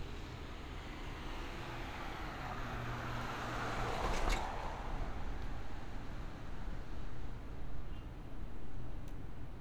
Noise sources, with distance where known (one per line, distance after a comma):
medium-sounding engine